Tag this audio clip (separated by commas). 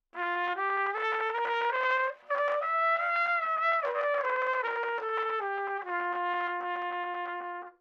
Brass instrument, Trumpet, Musical instrument, Music